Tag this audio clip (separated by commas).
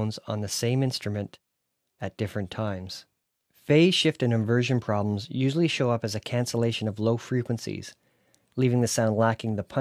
Speech